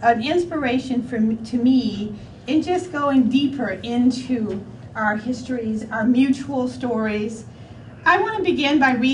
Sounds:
speech

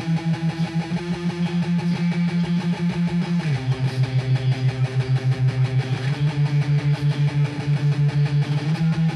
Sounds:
music

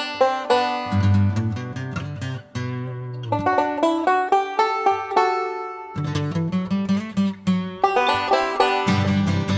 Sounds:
banjo
music

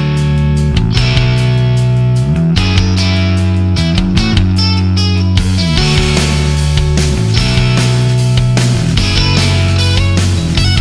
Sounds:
music

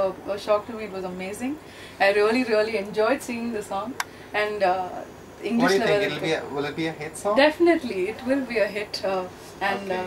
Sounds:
speech

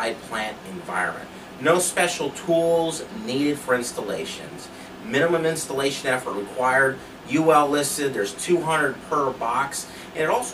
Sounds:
speech

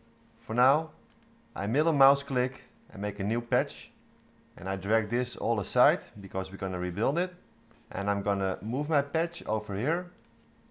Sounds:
speech

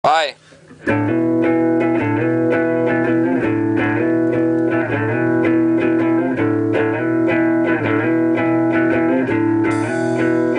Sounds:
tapping (guitar technique)
speech
music
electric guitar

